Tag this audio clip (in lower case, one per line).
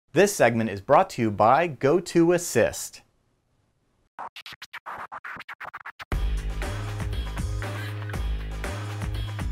inside a large room or hall
music
speech